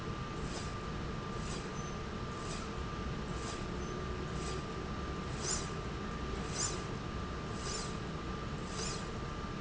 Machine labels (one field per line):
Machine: slide rail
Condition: normal